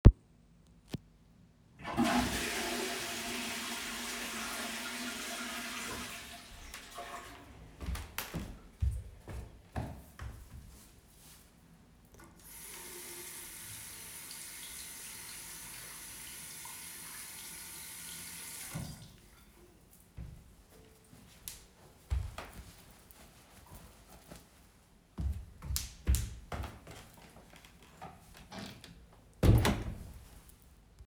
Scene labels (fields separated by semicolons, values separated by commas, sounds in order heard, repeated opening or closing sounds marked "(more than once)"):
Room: bathroom; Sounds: toilet flushing, footsteps, running water, door